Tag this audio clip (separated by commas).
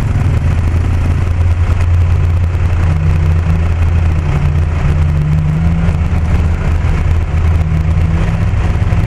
Vehicle, Car